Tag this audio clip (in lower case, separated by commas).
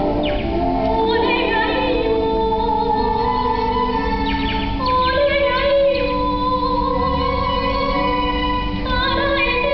music